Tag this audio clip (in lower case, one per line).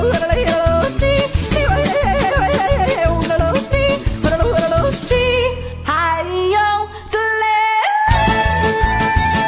music
yodeling
singing